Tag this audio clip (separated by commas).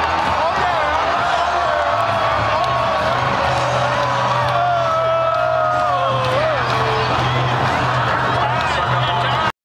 Music